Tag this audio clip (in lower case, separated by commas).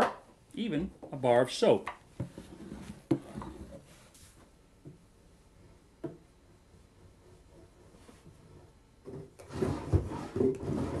opening or closing drawers